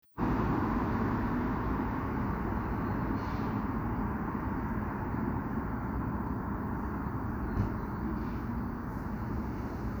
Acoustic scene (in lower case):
street